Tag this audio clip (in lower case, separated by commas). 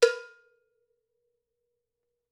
percussion, bell, music, cowbell, musical instrument